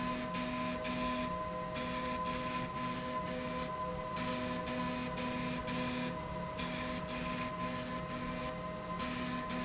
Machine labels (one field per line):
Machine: slide rail